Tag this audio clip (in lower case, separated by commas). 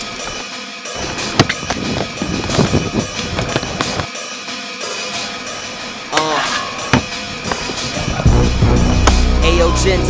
percussion